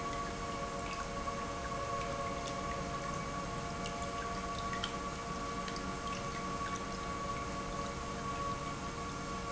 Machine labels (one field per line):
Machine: pump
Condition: normal